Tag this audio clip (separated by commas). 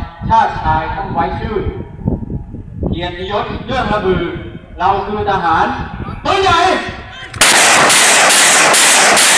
Artillery fire, gunfire